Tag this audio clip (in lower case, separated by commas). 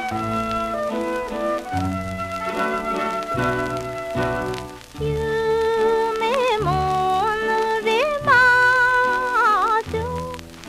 music, lullaby, tender music